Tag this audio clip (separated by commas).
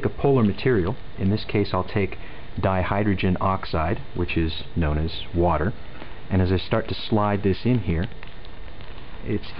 Speech